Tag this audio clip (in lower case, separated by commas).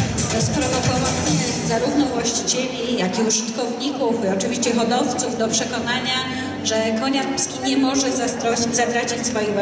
speech